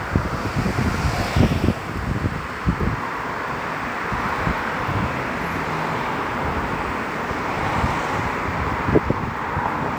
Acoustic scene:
street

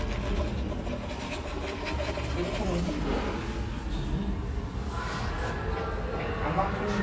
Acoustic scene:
cafe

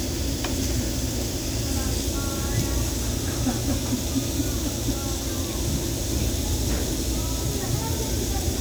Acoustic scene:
restaurant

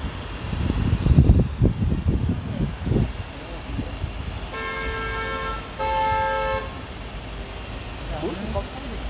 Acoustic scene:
street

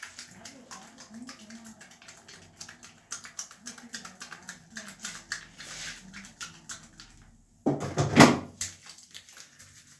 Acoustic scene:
restroom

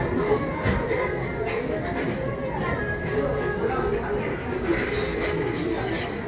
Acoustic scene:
cafe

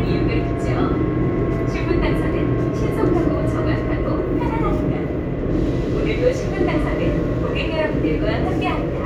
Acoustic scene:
subway train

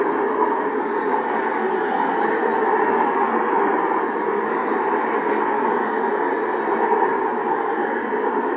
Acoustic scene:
street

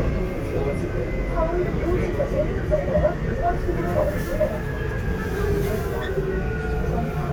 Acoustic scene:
subway train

